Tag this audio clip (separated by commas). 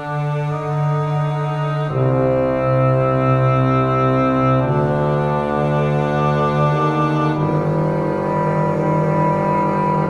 Double bass, Cello, Bowed string instrument